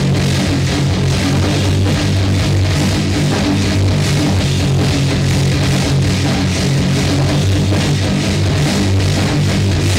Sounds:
Rock music, Music, Heavy metal

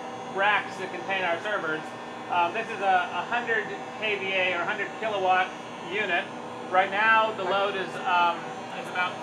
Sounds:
inside a small room, Speech

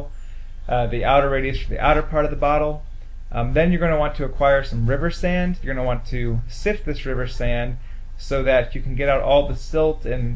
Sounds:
Speech

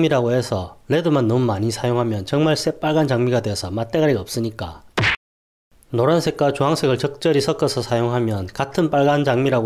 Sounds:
sharpen knife

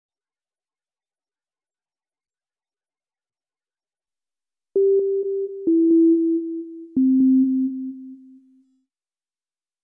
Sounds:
Silence, Sidetone

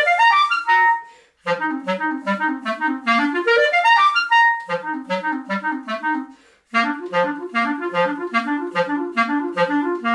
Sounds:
woodwind instrument

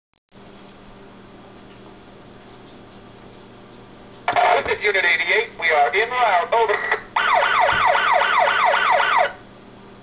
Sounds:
Siren, Ambulance (siren), Emergency vehicle

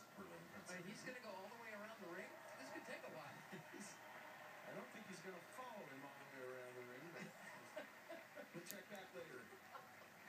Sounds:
Speech

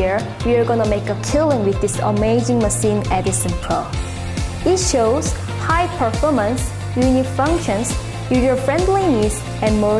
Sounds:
Speech, Music

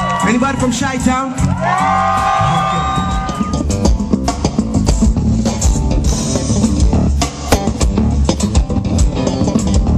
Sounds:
Music, Rimshot

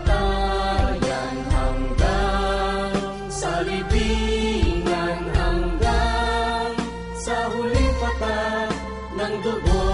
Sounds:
Music of Asia, Music

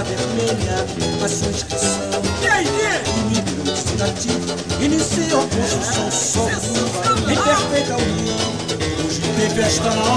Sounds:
Music, Music of Africa

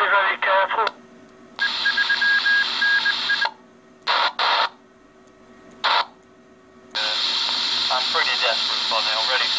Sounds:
Speech, Telephone, inside a small room

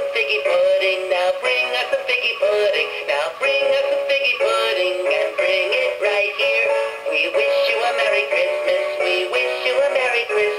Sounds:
Synthetic singing, Music, Male singing

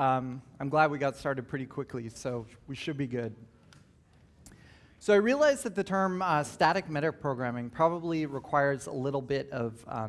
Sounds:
Speech

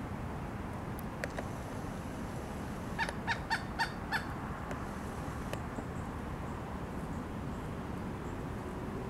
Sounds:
woodpecker pecking tree

